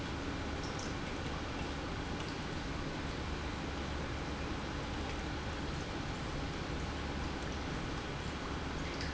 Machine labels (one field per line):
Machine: pump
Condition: normal